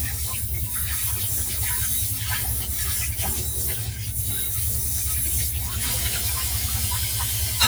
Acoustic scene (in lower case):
kitchen